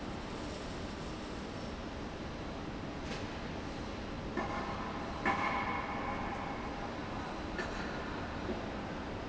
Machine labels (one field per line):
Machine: fan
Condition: abnormal